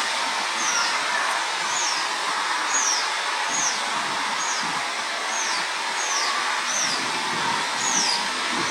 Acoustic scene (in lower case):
park